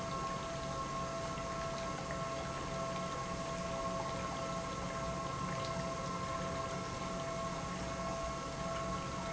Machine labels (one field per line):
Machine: pump